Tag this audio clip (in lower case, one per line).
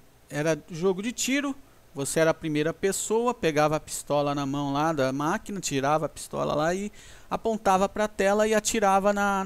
speech